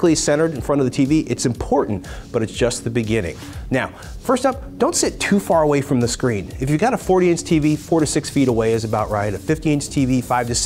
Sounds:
music
speech

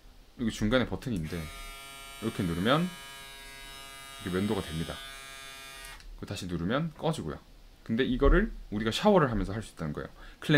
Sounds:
electric razor shaving

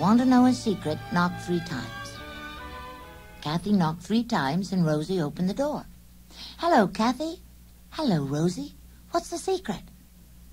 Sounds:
music
speech

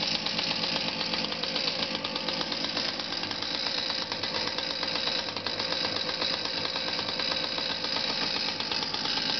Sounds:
speedboat
vehicle

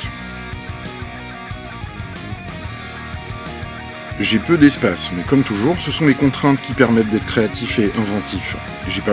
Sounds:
speech
music

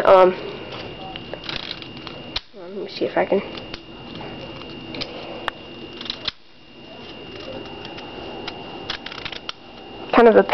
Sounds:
speech
inside a small room

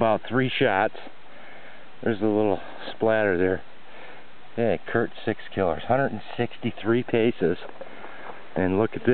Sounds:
speech

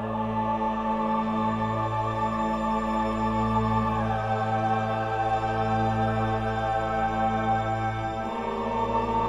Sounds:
music

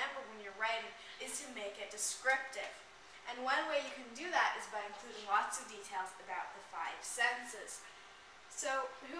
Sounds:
speech

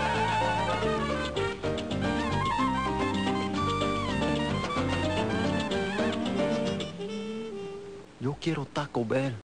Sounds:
speech
music

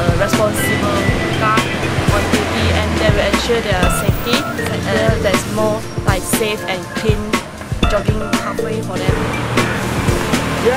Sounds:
speech
music

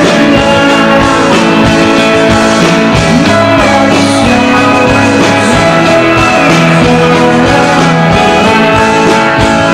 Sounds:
music

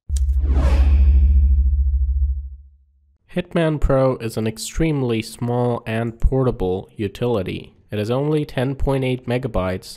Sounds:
sound effect

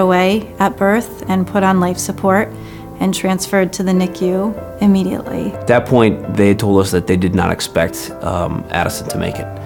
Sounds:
music
speech

